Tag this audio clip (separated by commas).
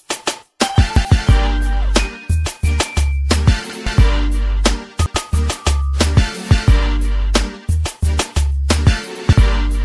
Music